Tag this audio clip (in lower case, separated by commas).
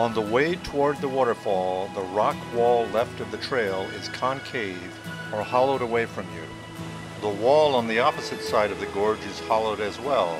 music, waterfall, speech